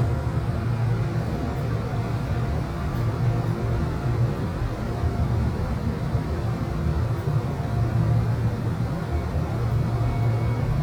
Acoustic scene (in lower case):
subway train